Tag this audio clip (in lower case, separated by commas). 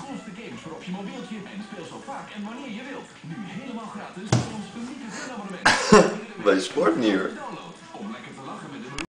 speech